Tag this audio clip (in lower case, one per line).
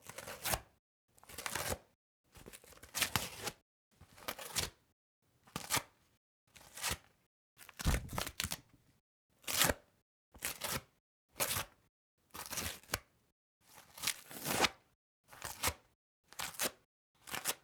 tearing